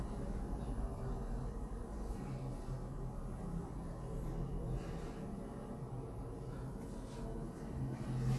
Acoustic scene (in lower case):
elevator